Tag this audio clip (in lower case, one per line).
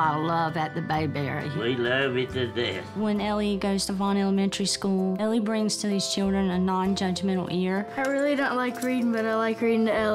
music
speech